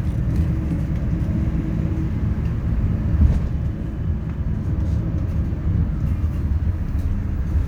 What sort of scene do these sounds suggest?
bus